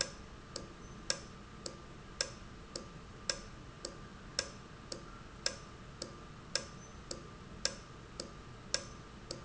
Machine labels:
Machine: valve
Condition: normal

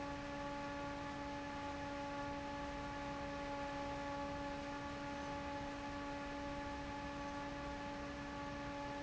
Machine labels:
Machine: fan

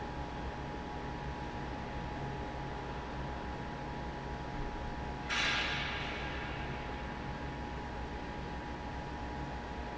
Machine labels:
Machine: fan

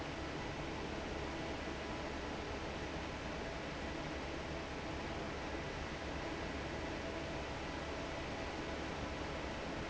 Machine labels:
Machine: fan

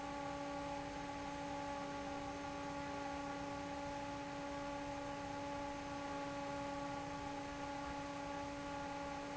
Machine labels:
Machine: fan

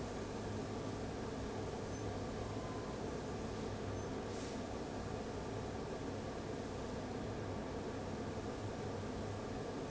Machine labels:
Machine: fan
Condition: abnormal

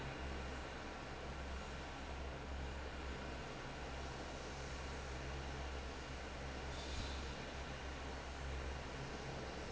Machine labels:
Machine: fan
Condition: normal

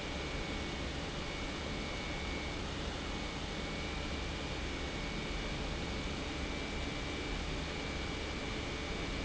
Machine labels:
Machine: pump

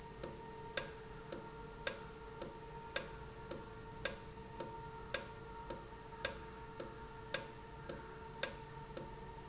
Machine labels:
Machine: valve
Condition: normal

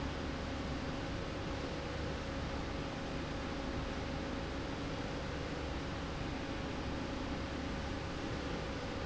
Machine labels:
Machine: slide rail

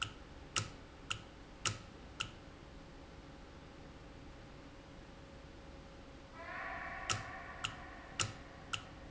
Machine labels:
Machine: valve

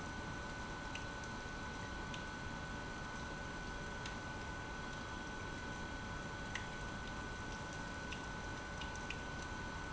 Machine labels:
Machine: pump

